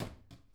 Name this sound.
wooden cupboard closing